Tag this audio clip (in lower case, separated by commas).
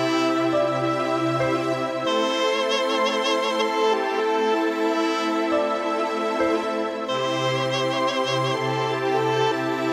piano, electric piano, keyboard (musical)